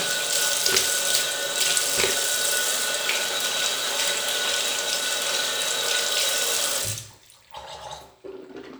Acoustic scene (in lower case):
restroom